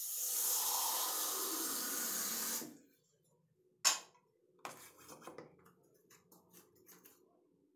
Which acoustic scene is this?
restroom